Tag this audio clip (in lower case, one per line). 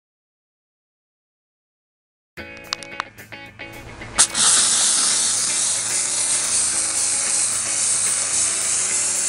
steam
music